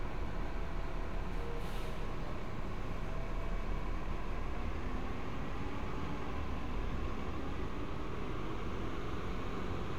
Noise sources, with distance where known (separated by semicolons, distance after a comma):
large-sounding engine, near